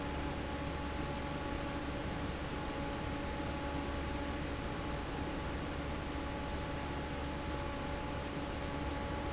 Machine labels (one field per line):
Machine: fan